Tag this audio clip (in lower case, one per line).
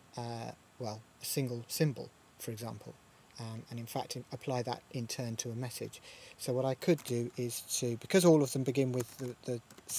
speech